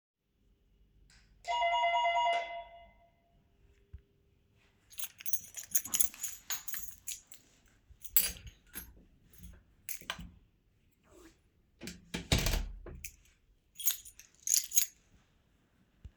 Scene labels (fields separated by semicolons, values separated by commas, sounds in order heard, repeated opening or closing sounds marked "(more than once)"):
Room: hallway; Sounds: bell ringing, keys, door